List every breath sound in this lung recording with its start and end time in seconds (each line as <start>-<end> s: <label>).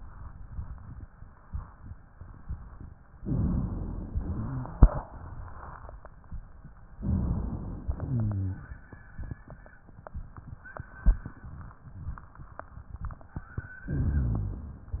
3.19-4.18 s: inhalation
3.23-4.08 s: rhonchi
4.25-4.95 s: exhalation
4.25-4.95 s: rhonchi
7.02-7.87 s: inhalation
7.02-7.87 s: rhonchi
7.95-8.67 s: rhonchi
7.97-8.60 s: exhalation
13.95-14.97 s: inhalation
13.95-14.97 s: rhonchi